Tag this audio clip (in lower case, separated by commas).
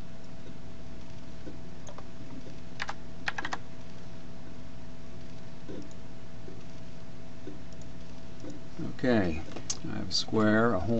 computer keyboard, typing